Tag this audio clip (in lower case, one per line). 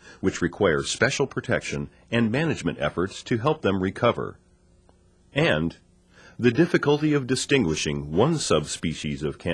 speech